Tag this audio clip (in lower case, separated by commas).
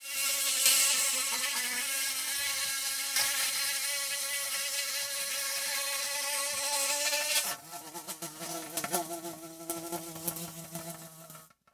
wild animals, insect, animal